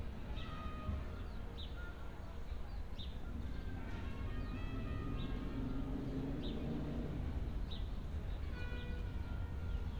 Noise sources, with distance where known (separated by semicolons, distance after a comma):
engine of unclear size, far; music from a fixed source, far; music from an unclear source, far